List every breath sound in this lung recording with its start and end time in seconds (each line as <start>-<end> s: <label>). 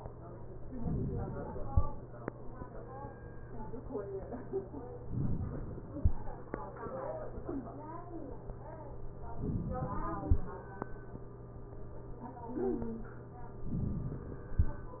5.09-5.90 s: inhalation
9.46-10.27 s: inhalation
13.62-14.43 s: inhalation